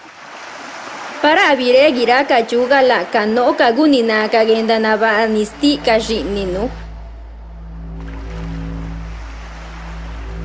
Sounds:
music, speech

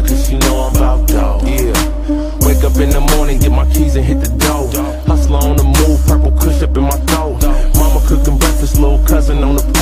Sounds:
music

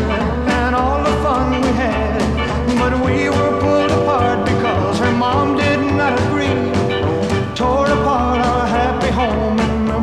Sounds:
music, rock and roll

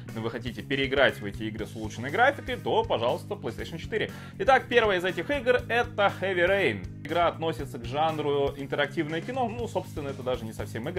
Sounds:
music, speech

